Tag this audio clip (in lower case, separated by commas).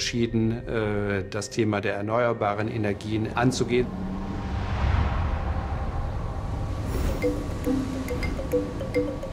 wind noise (microphone), music, rustling leaves, speech